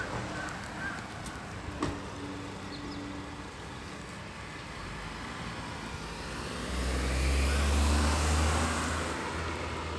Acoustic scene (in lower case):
street